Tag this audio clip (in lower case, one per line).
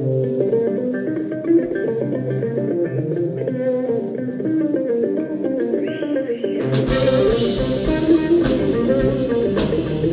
music